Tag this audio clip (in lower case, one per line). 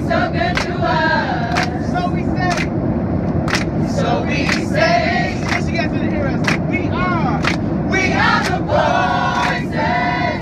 male singing
choir